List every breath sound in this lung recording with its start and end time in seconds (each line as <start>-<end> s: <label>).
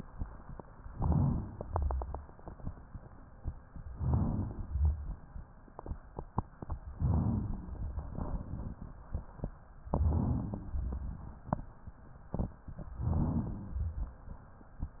0.89-1.61 s: inhalation
0.89-1.61 s: rhonchi
1.63-2.35 s: exhalation
1.63-2.35 s: rhonchi
3.95-4.67 s: inhalation
3.95-4.67 s: rhonchi
4.71-5.24 s: exhalation
4.71-5.24 s: rhonchi
7.02-7.74 s: inhalation
7.02-7.74 s: rhonchi
9.90-10.72 s: inhalation
9.90-10.72 s: rhonchi
10.74-11.33 s: exhalation
10.74-11.33 s: rhonchi
13.00-13.81 s: inhalation
13.00-13.81 s: rhonchi
13.83-14.42 s: exhalation
13.83-14.42 s: rhonchi